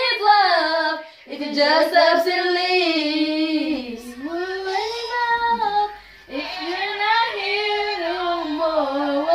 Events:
0.0s-1.1s: child singing
0.0s-9.3s: mechanisms
1.0s-1.2s: breathing
1.3s-6.0s: child singing
3.9s-4.8s: female singing
4.0s-4.2s: breathing
5.5s-5.7s: human voice
6.0s-6.3s: breathing
6.3s-9.3s: female singing
6.3s-9.3s: child singing

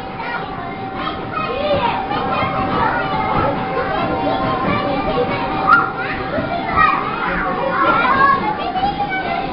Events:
0.0s-9.5s: children playing
0.0s-9.5s: mechanisms
0.0s-9.5s: music
0.1s-0.8s: kid speaking
0.9s-1.1s: kid speaking
1.3s-3.5s: kid speaking
3.8s-5.6s: kid speaking
5.6s-5.9s: shout
5.7s-5.8s: tick
5.9s-6.2s: kid speaking
6.4s-9.5s: kid speaking
7.4s-8.4s: laughter

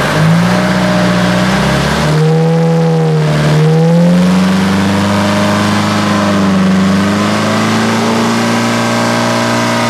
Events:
0.0s-9.8s: vroom
0.0s-9.8s: speedboat
0.0s-9.8s: water

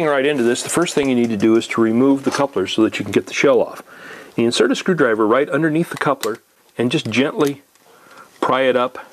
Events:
0.0s-3.8s: man speaking
0.0s-9.1s: background noise
0.4s-0.8s: surface contact
0.7s-1.7s: generic impact sounds
2.2s-2.5s: generic impact sounds
3.8s-4.3s: breathing
4.3s-6.4s: man speaking
5.9s-6.2s: tools
6.6s-6.7s: tick
6.8s-7.7s: man speaking
7.0s-7.1s: tick
7.3s-7.5s: tick
7.7s-7.8s: tick
7.8s-8.3s: breathing
8.1s-8.2s: tick
8.4s-9.1s: man speaking

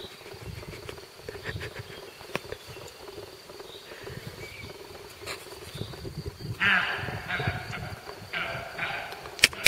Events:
0.0s-9.6s: background noise
0.0s-9.6s: bird call
0.0s-9.6s: insect
0.3s-2.0s: wind noise (microphone)
0.8s-0.9s: tick
1.3s-2.0s: breathing
2.3s-2.4s: tick
2.8s-2.9s: tick
3.8s-4.2s: breathing
4.0s-4.7s: wind noise (microphone)
5.2s-5.4s: breathing
5.5s-8.6s: wind noise (microphone)
6.6s-8.0s: animal
7.7s-7.8s: tick
8.1s-8.1s: tick
8.3s-9.2s: animal
9.4s-9.6s: arrow

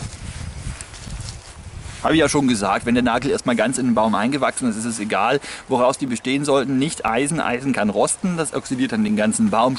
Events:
0.0s-0.8s: wind noise (microphone)
0.0s-9.7s: rustle
1.0s-2.0s: wind noise (microphone)
1.9s-5.3s: man speaking
3.4s-4.2s: chirp
5.4s-5.6s: breathing
5.6s-8.1s: man speaking
8.2s-9.7s: man speaking

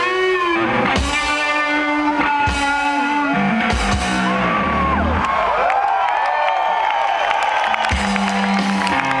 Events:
0.0s-4.4s: music
0.0s-9.2s: crowd
4.2s-5.0s: whoop
5.2s-9.2s: clapping
7.9s-9.2s: music

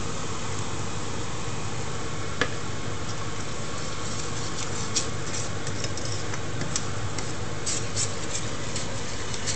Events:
0.0s-9.5s: mechanisms
2.3s-2.4s: silverware
3.0s-3.4s: stir
3.7s-6.8s: stir
7.1s-7.3s: stir
7.6s-9.5s: stir

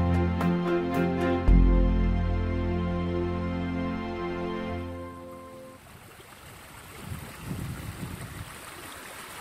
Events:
0.0s-5.6s: music
5.6s-9.4s: waterfall

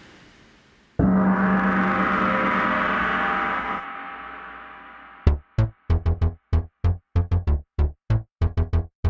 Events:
0.0s-1.0s: mechanisms
1.0s-9.0s: music

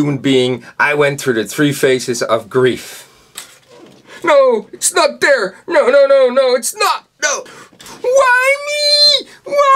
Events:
0.0s-2.8s: man speaking
0.0s-9.7s: background noise
2.7s-3.3s: breathing
3.3s-4.3s: generic impact sounds
4.0s-4.2s: breathing
4.2s-7.0s: man speaking
7.1s-7.4s: man speaking
7.4s-7.7s: breathing
7.8s-8.0s: breathing
8.0s-9.2s: man speaking
9.2s-9.4s: breathing
9.4s-9.7s: man speaking

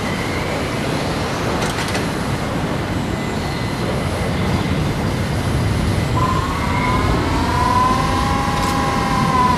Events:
0.0s-9.5s: music

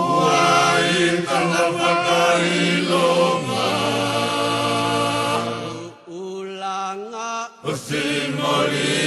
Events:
0.0s-9.0s: background noise
7.6s-9.0s: mantra

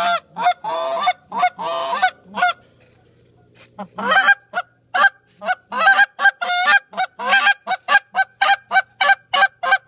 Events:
0.0s-9.8s: background noise
9.6s-9.8s: honk

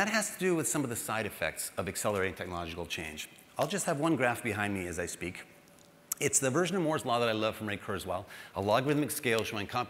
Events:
0.0s-1.7s: man speaking
0.0s-9.8s: background noise
1.8s-3.2s: man speaking
3.5s-5.4s: man speaking
5.6s-5.8s: clicking
6.1s-6.2s: clicking
6.2s-8.2s: man speaking
8.2s-8.5s: breathing
8.5s-9.8s: man speaking
9.3s-9.4s: clicking

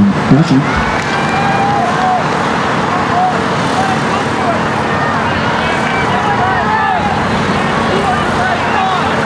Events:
0.0s-0.6s: man speaking
0.0s-9.2s: wind
1.3s-2.2s: human sounds
3.1s-9.2s: human sounds

